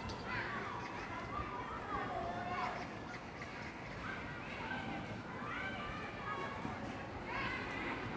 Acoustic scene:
park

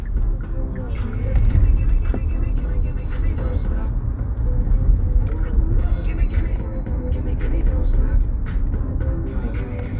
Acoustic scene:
car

